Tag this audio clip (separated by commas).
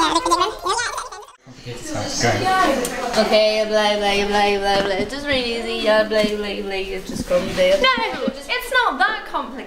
Speech